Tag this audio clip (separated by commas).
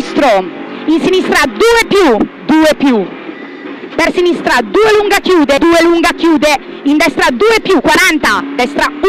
Motor vehicle (road), Vehicle, Speech, Car